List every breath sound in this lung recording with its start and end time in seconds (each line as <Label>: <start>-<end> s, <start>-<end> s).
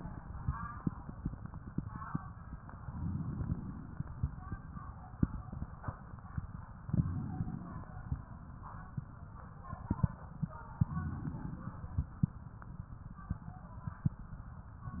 Inhalation: 2.81-4.06 s, 6.91-8.16 s, 10.85-12.11 s